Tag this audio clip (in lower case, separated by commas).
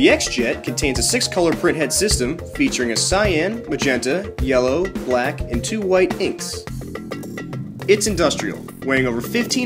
music, speech